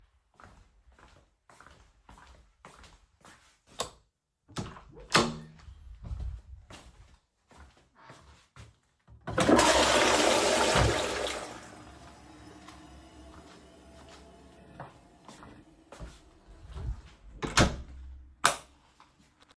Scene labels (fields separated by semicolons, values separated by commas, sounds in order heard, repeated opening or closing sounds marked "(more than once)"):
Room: bathroom; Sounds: footsteps, light switch, door (more than once), toilet flushing